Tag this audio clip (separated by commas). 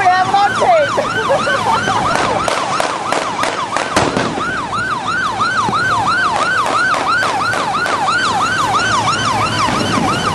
Vehicle, Boat, Motorboat, Speech